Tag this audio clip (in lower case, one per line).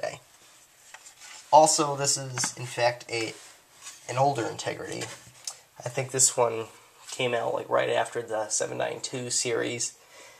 speech